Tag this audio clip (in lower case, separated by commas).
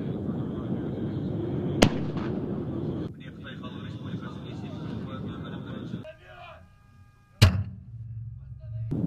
gunshot